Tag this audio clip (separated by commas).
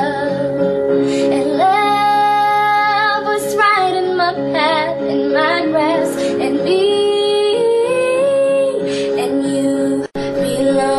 Music